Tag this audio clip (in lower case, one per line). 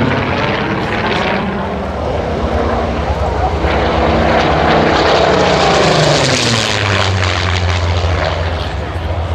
airplane flyby